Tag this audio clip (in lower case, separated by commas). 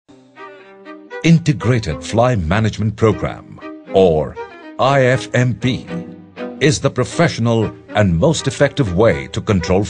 music, speech